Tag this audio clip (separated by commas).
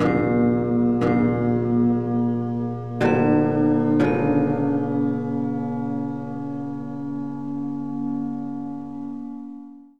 Musical instrument, Music